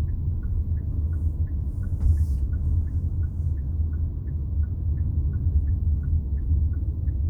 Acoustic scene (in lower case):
car